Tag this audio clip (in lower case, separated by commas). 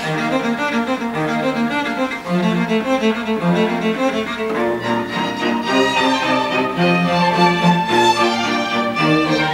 violin, cello, music, playing cello, bowed string instrument, orchestra, musical instrument